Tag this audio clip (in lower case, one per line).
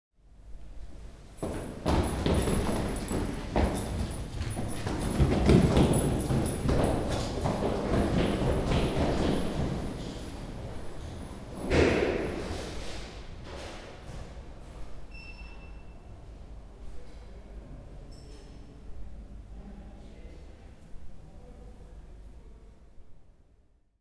run